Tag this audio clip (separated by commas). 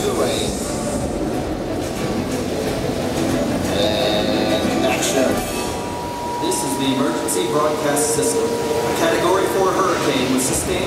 Speech, Music